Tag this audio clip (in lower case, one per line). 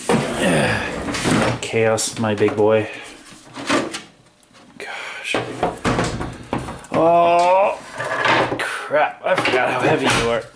speech
inside a small room